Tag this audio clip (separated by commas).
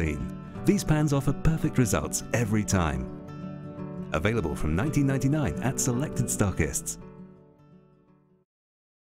Music, Speech